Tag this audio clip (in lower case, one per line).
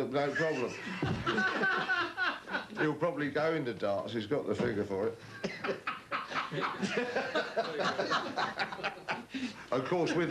speech
laughter